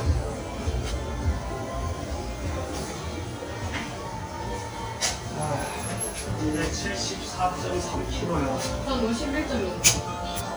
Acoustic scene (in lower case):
elevator